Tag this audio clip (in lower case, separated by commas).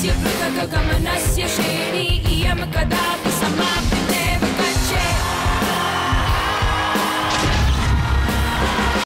heavy metal, music